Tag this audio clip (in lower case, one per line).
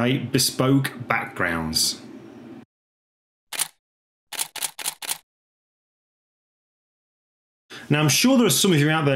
speech